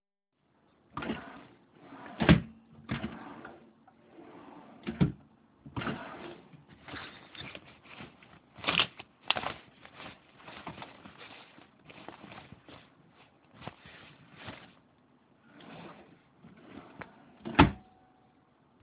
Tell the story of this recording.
I open a wardrobe drawer, move something inside briefly, and close the drawer.